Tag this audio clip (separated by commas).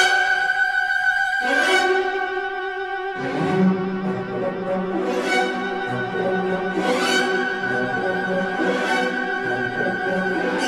Music